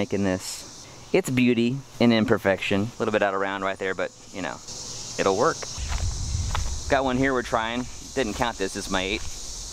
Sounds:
outside, rural or natural, Speech

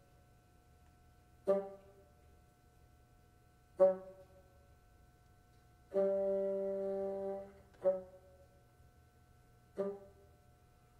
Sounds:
playing bassoon

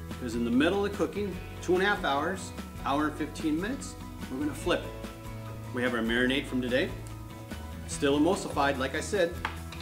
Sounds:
Music, Speech

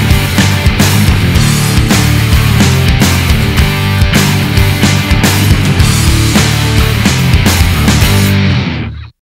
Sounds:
Music

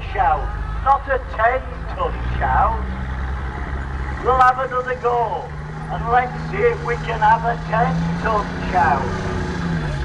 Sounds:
Vehicle, Speech

